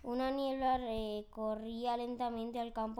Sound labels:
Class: speech